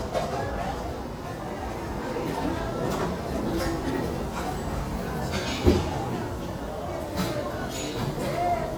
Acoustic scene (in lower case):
restaurant